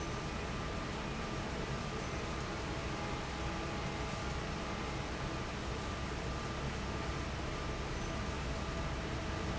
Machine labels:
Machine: fan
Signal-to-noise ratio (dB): -6 dB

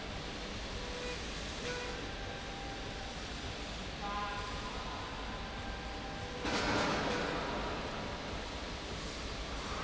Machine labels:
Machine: slide rail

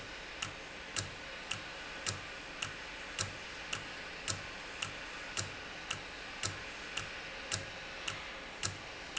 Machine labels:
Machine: valve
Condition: normal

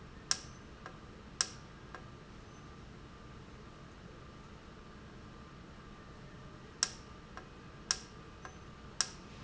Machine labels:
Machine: valve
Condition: normal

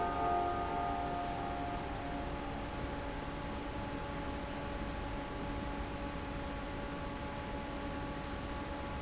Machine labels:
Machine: fan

